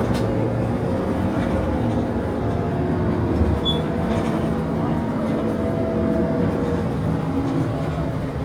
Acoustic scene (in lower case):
bus